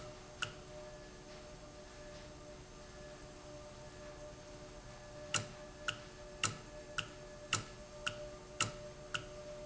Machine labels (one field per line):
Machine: valve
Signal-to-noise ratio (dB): 6 dB